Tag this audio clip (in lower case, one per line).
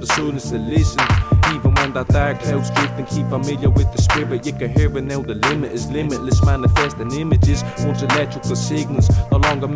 music